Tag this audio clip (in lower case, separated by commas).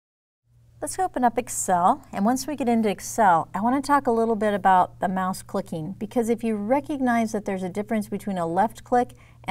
speech